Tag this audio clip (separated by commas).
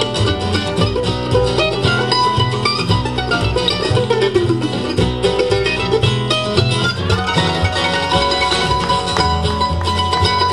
Music, Bowed string instrument, Guitar, Musical instrument, Plucked string instrument, Bluegrass